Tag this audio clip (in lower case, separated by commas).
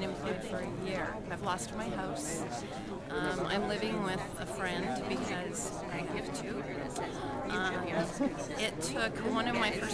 speech, inside a public space